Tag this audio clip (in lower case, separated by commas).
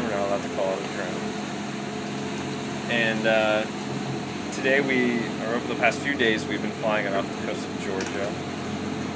speech, outside, rural or natural, boat, vehicle